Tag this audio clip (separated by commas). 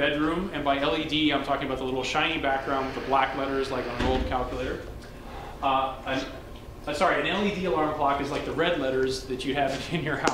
Speech